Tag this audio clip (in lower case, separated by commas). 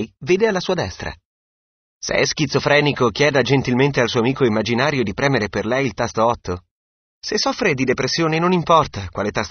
speech, speech synthesizer